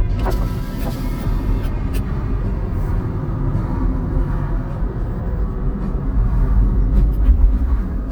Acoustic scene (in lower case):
car